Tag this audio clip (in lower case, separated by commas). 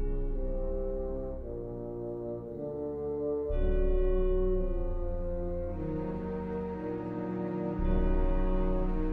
music